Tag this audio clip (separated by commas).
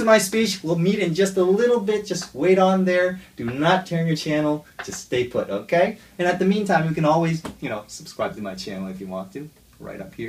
man speaking, Speech